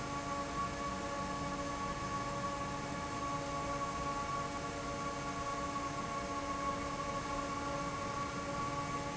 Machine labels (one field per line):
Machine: fan